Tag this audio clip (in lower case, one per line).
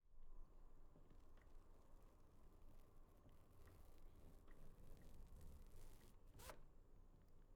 zipper (clothing)
home sounds